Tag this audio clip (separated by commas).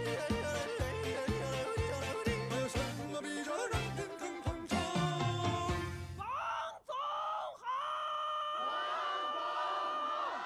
yodelling